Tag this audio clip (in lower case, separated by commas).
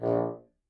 woodwind instrument, musical instrument, music